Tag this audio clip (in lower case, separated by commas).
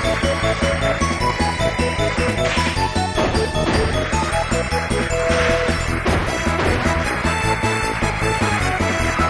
music